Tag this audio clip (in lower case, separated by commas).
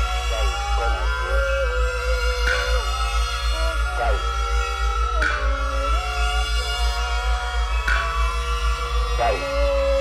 speech, music